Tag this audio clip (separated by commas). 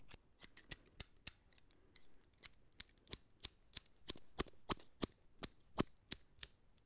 Scissors, Domestic sounds